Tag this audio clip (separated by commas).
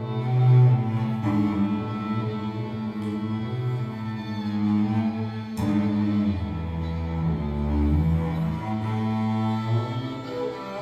Musical instrument, Double bass, playing double bass, Music